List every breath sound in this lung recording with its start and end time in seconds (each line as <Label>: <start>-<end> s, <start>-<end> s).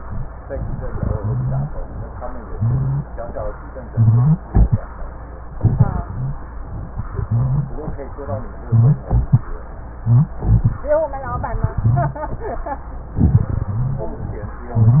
Wheeze: 1.08-1.69 s, 2.50-3.11 s, 3.87-4.48 s, 6.09-6.49 s, 7.13-7.74 s, 8.67-9.07 s, 10.02-10.42 s, 11.74-12.26 s, 13.74-14.14 s